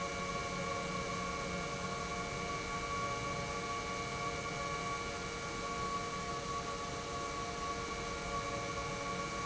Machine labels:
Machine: pump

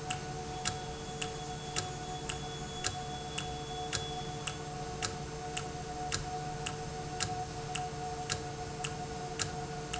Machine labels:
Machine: valve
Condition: normal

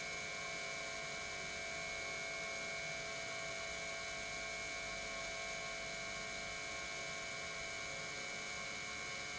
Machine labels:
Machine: pump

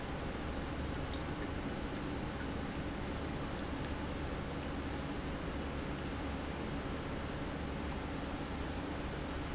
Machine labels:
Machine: pump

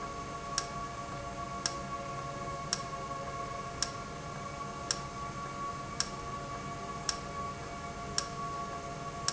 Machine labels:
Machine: valve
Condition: normal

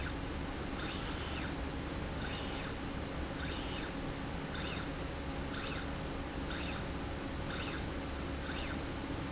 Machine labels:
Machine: slide rail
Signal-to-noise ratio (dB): -6 dB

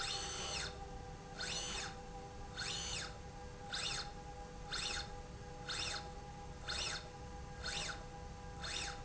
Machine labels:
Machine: slide rail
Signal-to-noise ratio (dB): 6 dB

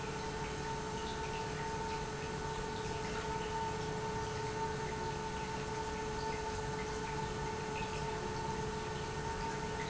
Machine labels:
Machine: pump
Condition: normal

